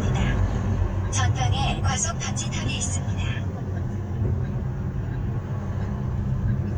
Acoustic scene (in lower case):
car